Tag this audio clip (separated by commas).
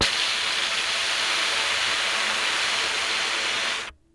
Hiss